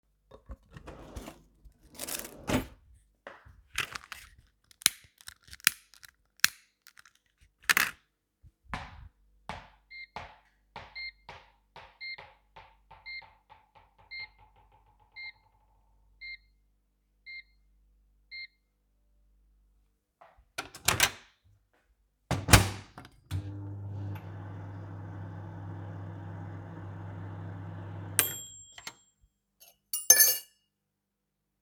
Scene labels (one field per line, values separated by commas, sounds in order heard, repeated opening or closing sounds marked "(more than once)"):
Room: living room, hallway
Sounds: wardrobe or drawer, bell ringing, microwave, cutlery and dishes